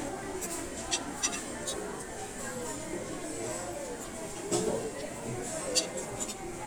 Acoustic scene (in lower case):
restaurant